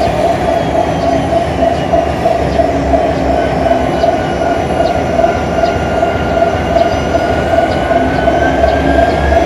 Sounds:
vehicle, engine, heavy engine (low frequency)

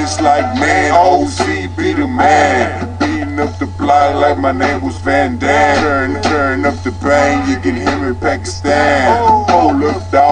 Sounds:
music

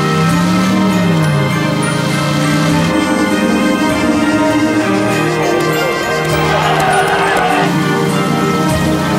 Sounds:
vehicle, theme music, car

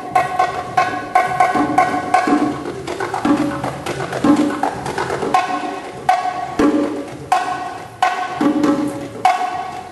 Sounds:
music, percussion

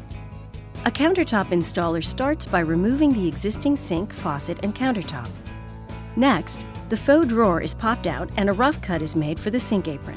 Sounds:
speech, music

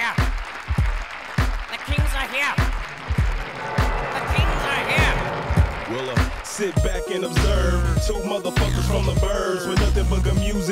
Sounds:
music

